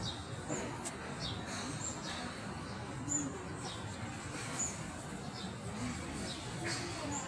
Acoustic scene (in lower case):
park